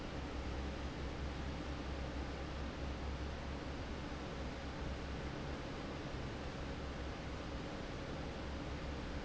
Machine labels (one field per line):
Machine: fan